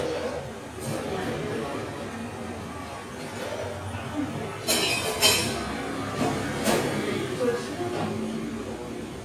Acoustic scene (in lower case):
cafe